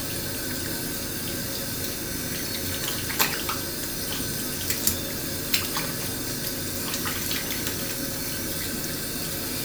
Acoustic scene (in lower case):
restroom